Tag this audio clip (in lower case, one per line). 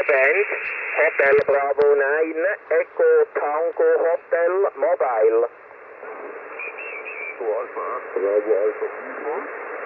speech